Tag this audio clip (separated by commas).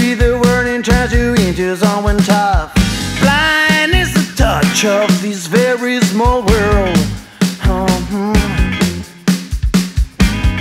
Music, Reggae